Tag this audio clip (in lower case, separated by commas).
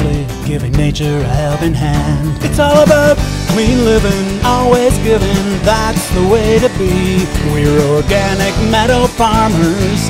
country, music